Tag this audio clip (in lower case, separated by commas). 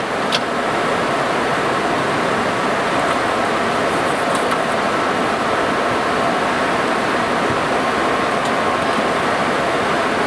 aircraft, vehicle